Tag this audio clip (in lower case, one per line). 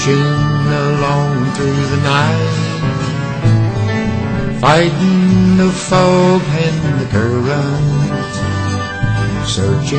music